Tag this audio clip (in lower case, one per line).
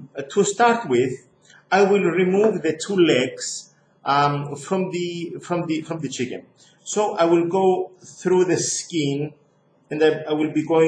speech